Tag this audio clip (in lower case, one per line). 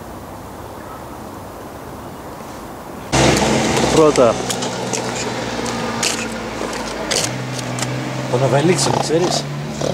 oink
speech